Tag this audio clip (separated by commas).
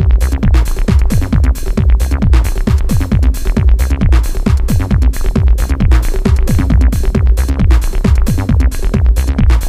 Electronic music, Techno, Music